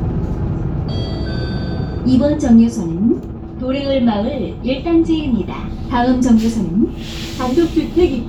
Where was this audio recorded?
on a bus